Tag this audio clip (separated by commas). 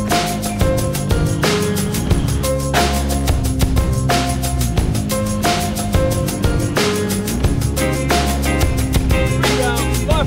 Speech, Music